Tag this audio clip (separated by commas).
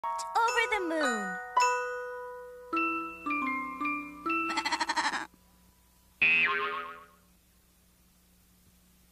Speech, Music, Sheep